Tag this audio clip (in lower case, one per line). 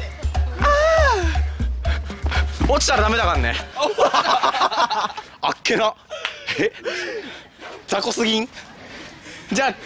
bouncing on trampoline